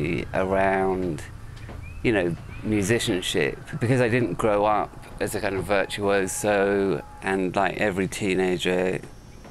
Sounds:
speech

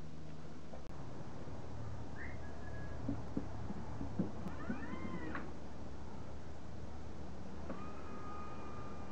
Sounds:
sliding door

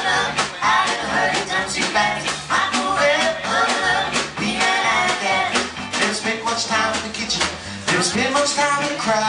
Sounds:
music

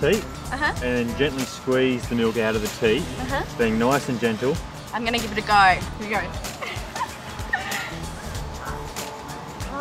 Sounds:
speech
music

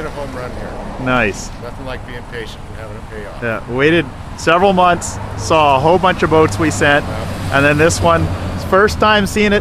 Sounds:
speech
vehicle

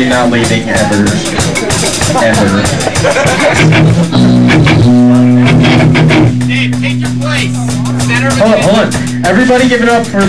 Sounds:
speech
music

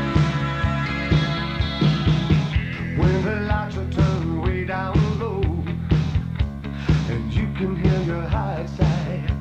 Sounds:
music

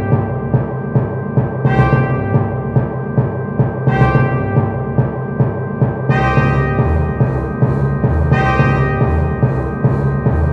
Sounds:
timpani

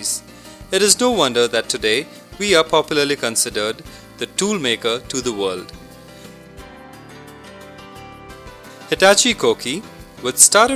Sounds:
speech
music

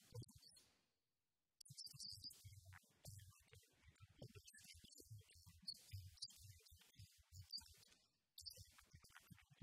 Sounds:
speech

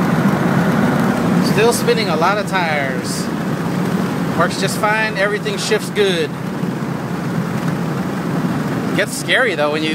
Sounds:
speech

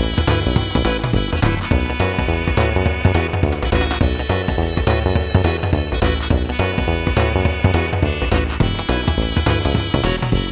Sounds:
video game music
music

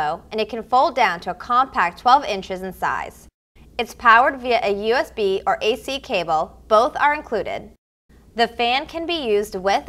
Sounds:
speech

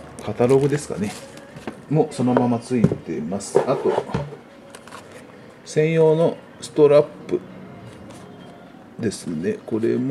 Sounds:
speech

